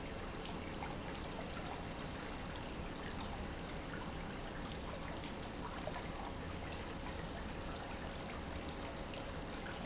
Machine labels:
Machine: pump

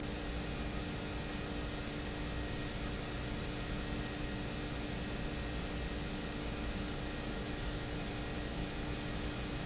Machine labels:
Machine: pump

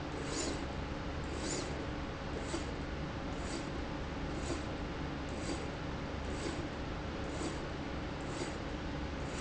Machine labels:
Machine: slide rail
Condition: abnormal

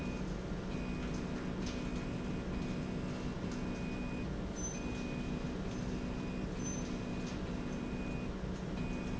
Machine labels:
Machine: slide rail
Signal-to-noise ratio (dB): -6 dB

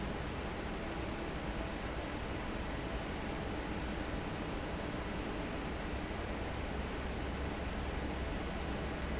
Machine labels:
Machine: fan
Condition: normal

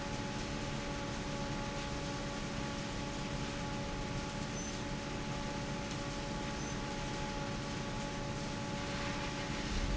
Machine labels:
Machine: fan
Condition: normal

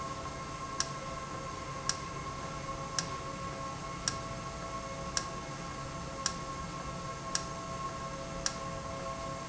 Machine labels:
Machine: valve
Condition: normal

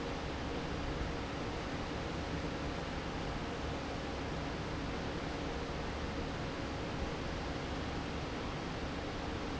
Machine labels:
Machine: fan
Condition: normal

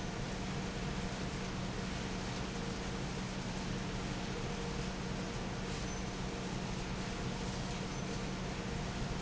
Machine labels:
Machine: fan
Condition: normal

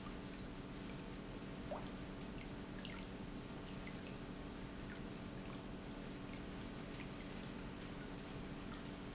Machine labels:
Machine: pump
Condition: normal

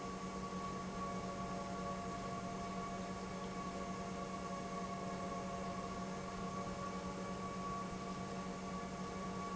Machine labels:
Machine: pump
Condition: normal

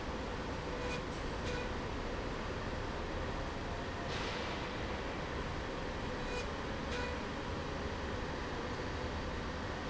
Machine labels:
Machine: slide rail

